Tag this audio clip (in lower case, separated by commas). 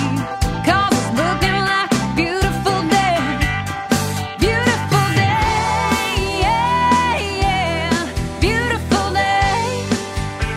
music